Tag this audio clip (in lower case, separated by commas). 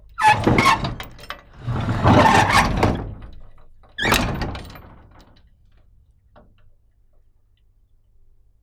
sliding door, door, home sounds